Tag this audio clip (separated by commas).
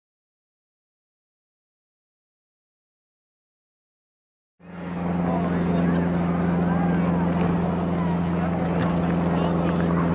Speech, Vehicle